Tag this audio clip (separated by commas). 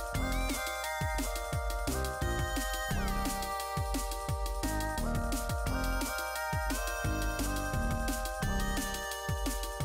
Music